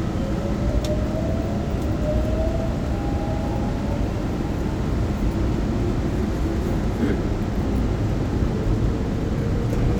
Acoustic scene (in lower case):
subway train